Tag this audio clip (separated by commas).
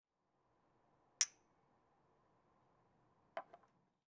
clink, Glass